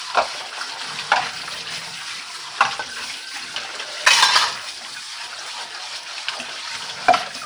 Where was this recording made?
in a kitchen